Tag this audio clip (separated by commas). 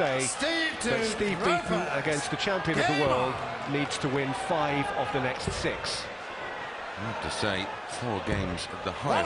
Speech